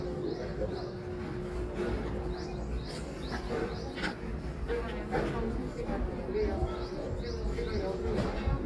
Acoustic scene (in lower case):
residential area